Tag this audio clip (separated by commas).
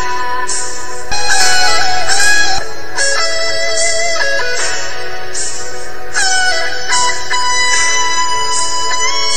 Tambourine, Music